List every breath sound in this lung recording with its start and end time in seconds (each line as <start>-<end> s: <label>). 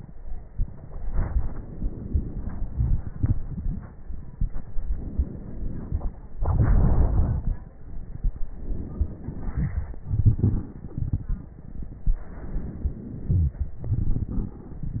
0.90-2.73 s: inhalation
0.90-2.73 s: crackles
2.74-4.70 s: exhalation
4.70-6.29 s: inhalation
4.70-6.29 s: crackles
6.29-8.47 s: exhalation
6.32-8.47 s: crackles
8.48-10.03 s: inhalation
8.49-9.98 s: crackles
10.03-12.26 s: exhalation
10.03-12.26 s: crackles
12.27-13.81 s: inhalation
13.31-13.81 s: wheeze
13.78-15.00 s: exhalation
13.78-15.00 s: crackles